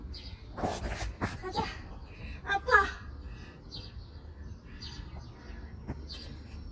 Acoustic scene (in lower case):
park